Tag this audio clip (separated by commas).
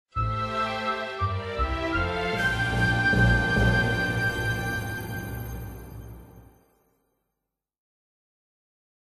Music